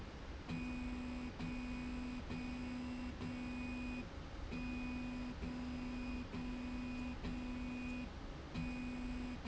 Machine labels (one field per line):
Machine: slide rail